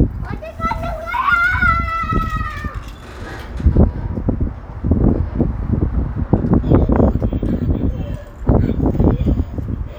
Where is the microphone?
in a residential area